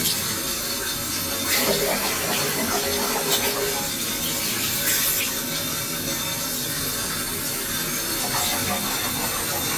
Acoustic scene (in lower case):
restroom